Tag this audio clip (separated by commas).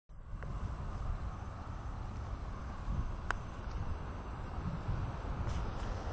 Insect, Wild animals, Animal